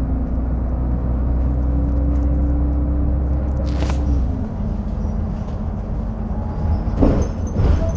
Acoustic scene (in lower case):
bus